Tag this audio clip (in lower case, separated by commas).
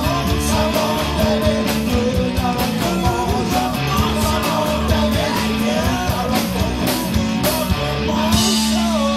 singing, music